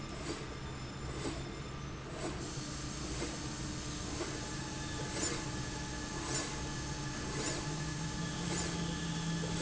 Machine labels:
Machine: slide rail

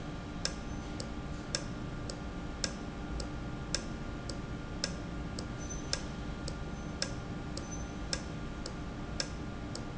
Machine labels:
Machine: valve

